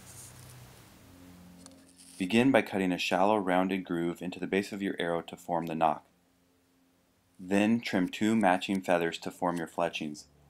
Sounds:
speech

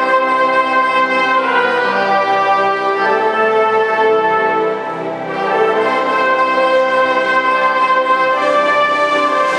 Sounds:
tender music, music

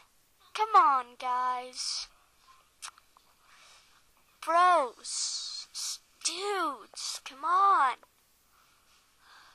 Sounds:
speech, inside a small room

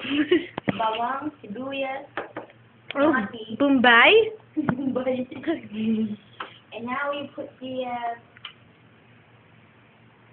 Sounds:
speech

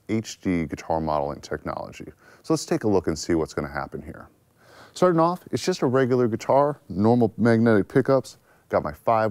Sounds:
speech

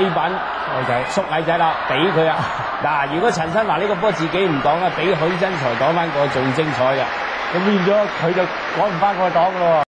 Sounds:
speech

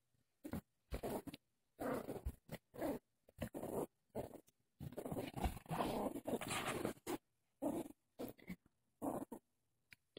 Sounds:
domestic animals, dog, animal

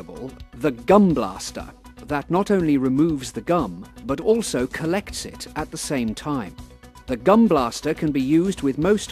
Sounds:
music, speech

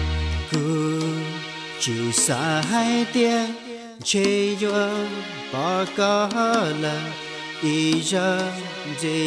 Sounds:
music, middle eastern music

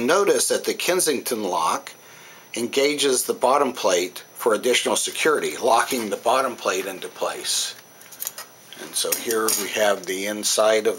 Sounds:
speech

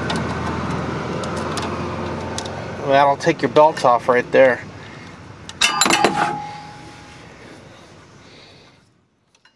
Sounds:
vehicle, speech

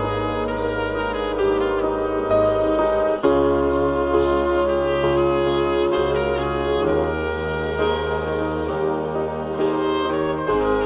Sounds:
trombone, french horn, trumpet, brass instrument

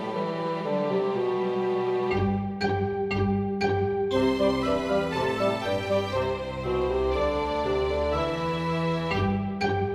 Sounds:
music

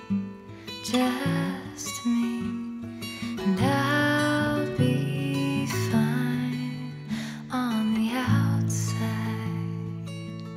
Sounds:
music

